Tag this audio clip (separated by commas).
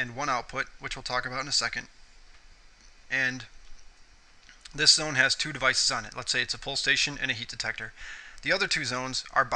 Speech